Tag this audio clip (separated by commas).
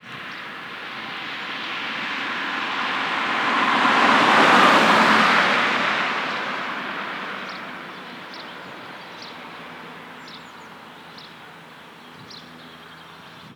Vehicle, Car passing by, Motor vehicle (road), Car